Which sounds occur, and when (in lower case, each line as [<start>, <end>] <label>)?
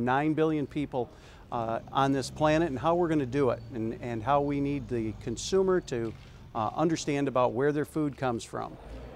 [0.00, 8.70] background noise
[1.05, 1.50] breathing